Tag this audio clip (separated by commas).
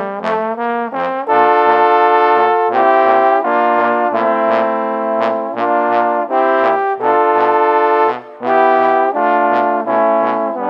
playing trombone